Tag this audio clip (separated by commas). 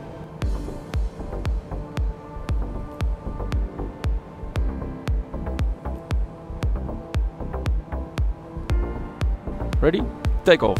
Music, Speech